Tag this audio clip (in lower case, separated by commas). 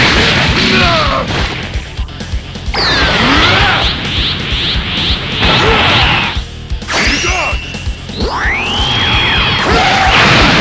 speech, music